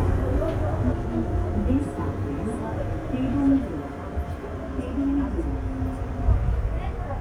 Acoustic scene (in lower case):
subway train